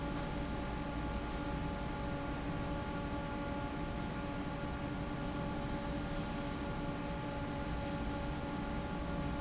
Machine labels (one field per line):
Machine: fan